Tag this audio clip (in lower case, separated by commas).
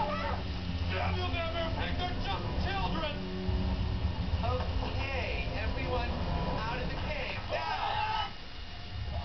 speech